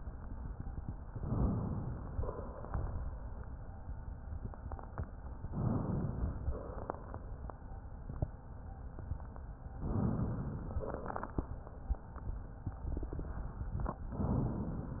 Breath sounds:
Inhalation: 1.07-2.15 s, 5.46-6.46 s, 9.79-10.79 s
Exhalation: 2.11-3.13 s, 6.47-7.29 s, 10.81-11.55 s
Crackles: 2.11-3.13 s, 6.47-7.29 s, 10.81-11.55 s

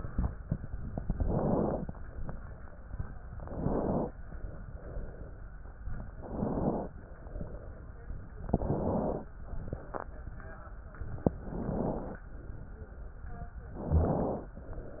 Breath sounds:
Inhalation: 1.10-1.82 s, 3.38-4.10 s, 6.17-6.89 s, 8.50-9.22 s, 11.38-12.22 s, 13.78-14.55 s

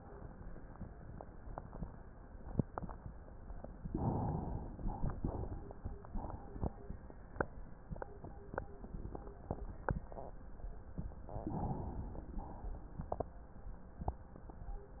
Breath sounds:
Inhalation: 3.91-4.78 s, 11.44-12.45 s
Exhalation: 4.78-5.71 s, 12.45-13.19 s

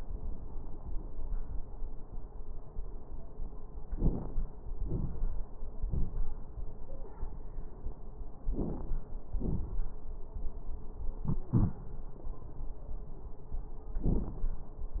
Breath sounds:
Inhalation: 3.87-4.43 s, 8.49-9.07 s
Exhalation: 4.80-5.42 s, 9.31-9.89 s
Crackles: 3.87-4.43 s, 4.80-5.42 s, 8.49-9.07 s, 9.31-9.89 s

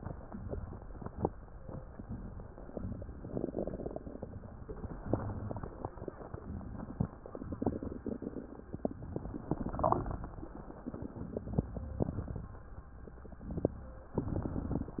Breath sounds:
Inhalation: 0.00-0.43 s, 1.61-2.67 s, 4.16-5.08 s, 6.28-7.11 s, 8.71-9.56 s, 10.85-11.68 s, 13.13-14.19 s
Exhalation: 0.45-1.27 s, 2.72-4.03 s, 5.09-6.15 s, 7.18-8.06 s, 9.57-10.53 s, 11.71-12.65 s, 14.20-14.99 s
Crackles: 5.11-6.13 s

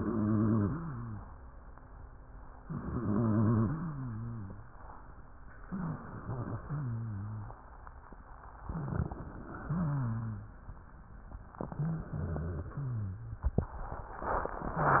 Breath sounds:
Inhalation: 2.67-3.70 s, 5.58-6.61 s, 8.63-9.66 s, 11.66-12.69 s
Exhalation: 3.71-4.74 s, 6.62-7.65 s, 9.62-10.64 s, 12.69-13.59 s
Wheeze: 0.00-1.31 s, 2.67-3.70 s, 3.71-4.74 s, 5.58-6.61 s, 6.62-7.65 s, 9.62-10.64 s, 11.66-12.69 s, 12.79-13.47 s
Crackles: 8.63-9.66 s

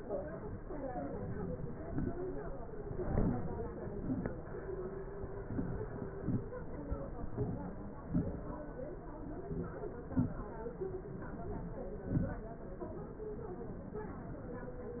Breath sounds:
Inhalation: 1.06-1.65 s, 3.03-3.55 s, 5.45-6.10 s, 7.42-7.90 s, 9.46-9.91 s, 10.85-11.67 s
Exhalation: 1.79-2.25 s, 3.96-4.35 s, 6.24-6.55 s, 8.15-8.54 s, 10.19-10.56 s, 11.89-12.46 s

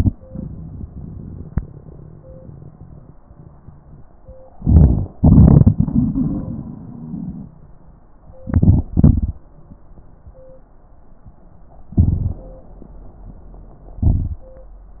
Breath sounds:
Inhalation: 4.58-5.09 s, 8.44-8.86 s, 11.99-12.40 s, 14.02-14.43 s
Exhalation: 5.21-7.50 s, 8.95-9.36 s
Crackles: 4.58-5.09 s, 5.21-5.75 s, 8.44-8.86 s, 8.96-9.38 s, 11.99-12.40 s, 14.02-14.43 s

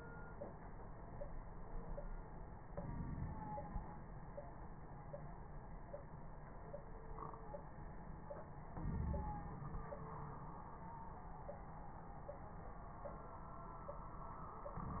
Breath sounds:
Inhalation: 2.65-3.80 s, 8.71-9.87 s
Crackles: 2.65-3.80 s, 8.71-9.87 s

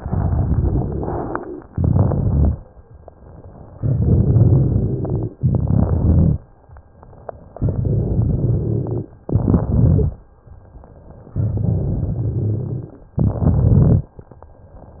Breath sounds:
Inhalation: 1.63-2.58 s, 5.41-6.36 s, 9.26-10.21 s, 13.19-14.14 s
Exhalation: 0.00-1.58 s, 3.76-5.35 s, 7.55-9.15 s, 11.33-13.07 s
Crackles: 0.00-1.58 s, 1.63-2.58 s, 3.76-5.35 s, 5.41-6.36 s, 7.55-9.15 s, 9.26-10.21 s, 11.33-13.07 s, 13.19-14.14 s

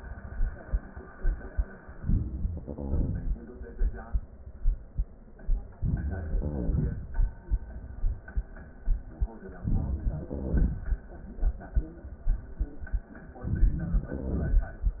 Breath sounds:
Inhalation: 2.03-2.64 s, 5.75-6.32 s, 9.61-10.07 s, 13.38-14.03 s
Exhalation: 2.65-3.49 s, 6.31-7.42 s, 10.07-11.06 s, 14.05-15.00 s
Wheeze: 2.51-3.38 s, 6.01-7.05 s, 10.08-10.74 s, 14.16-14.73 s

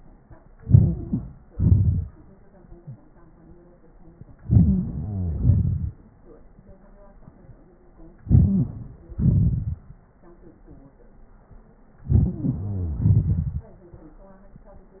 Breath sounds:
Inhalation: 0.58-1.25 s, 4.46-4.90 s, 8.29-8.67 s, 12.07-12.37 s
Exhalation: 1.51-2.09 s, 5.33-5.92 s, 9.17-9.76 s, 12.99-13.64 s
Wheeze: 4.63-5.42 s, 8.41-9.05 s, 12.32-13.11 s

